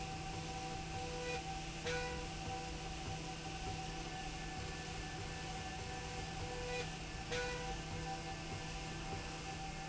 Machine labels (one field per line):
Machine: slide rail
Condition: normal